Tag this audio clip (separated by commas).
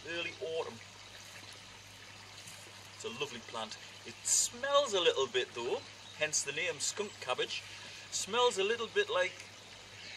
Speech